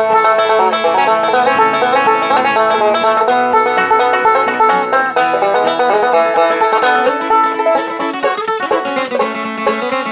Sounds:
Musical instrument, Banjo, Music, Guitar, Country, playing banjo, Plucked string instrument

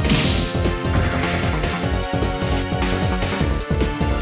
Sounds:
Music

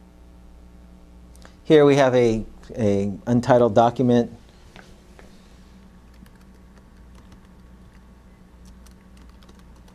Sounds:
Computer keyboard, Speech, Typing

